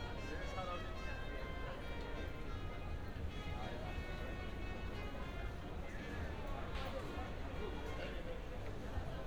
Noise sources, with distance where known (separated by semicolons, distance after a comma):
music from an unclear source, far; person or small group talking